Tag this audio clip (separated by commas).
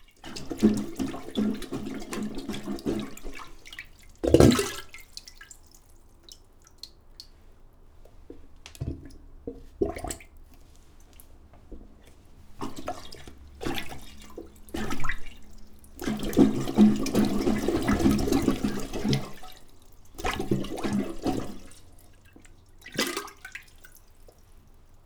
Gurgling, Water